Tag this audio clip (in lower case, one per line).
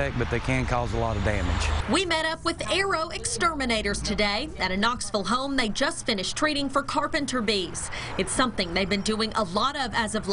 speech